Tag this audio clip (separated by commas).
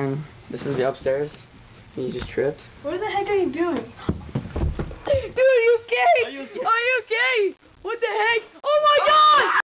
Speech